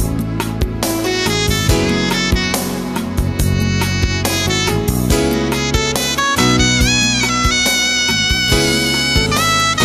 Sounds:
Music

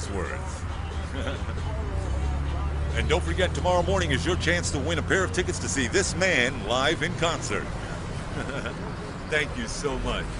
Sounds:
Speech, Music

